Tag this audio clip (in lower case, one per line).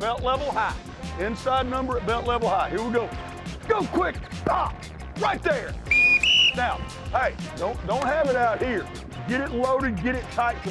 speech
music